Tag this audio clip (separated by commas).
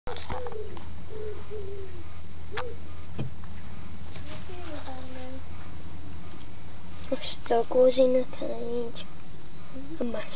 Speech, Animal